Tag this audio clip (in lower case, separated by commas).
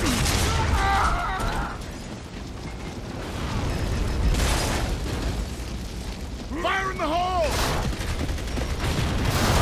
speech